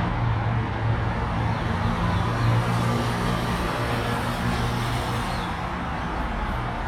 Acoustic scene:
street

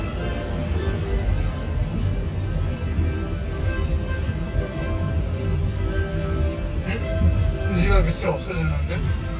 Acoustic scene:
car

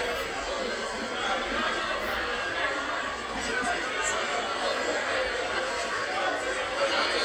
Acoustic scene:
cafe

